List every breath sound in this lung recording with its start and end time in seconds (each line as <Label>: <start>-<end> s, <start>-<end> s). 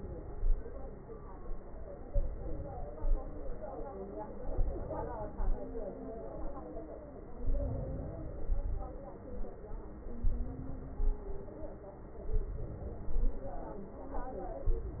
Inhalation: 2.11-2.92 s, 4.52-5.34 s, 7.35-8.21 s, 10.22-10.96 s, 12.33-13.07 s, 14.65-15.00 s
Exhalation: 2.96-3.78 s, 5.32-5.95 s, 8.32-9.18 s, 11.00-11.74 s, 13.07-13.81 s